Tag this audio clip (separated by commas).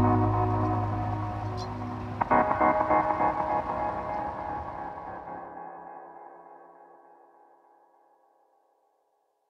Music